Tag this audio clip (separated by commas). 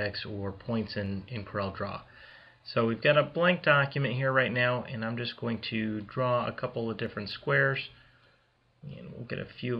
Speech